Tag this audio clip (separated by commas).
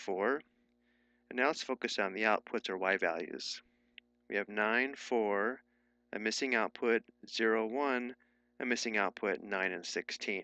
Speech